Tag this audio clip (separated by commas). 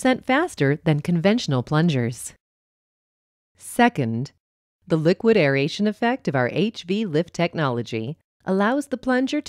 Speech